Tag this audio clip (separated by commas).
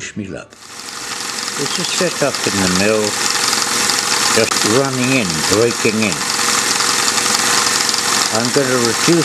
Speech, Engine